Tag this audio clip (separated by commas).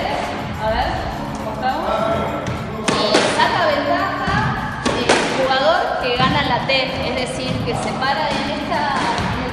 playing squash